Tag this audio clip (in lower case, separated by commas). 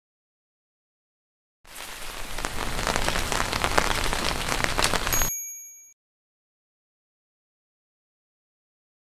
rain, rain on surface